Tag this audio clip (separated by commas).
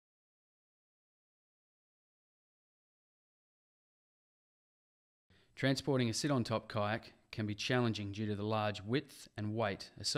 Speech